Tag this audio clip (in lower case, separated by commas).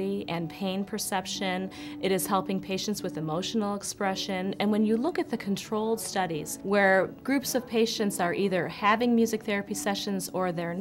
background music, speech, music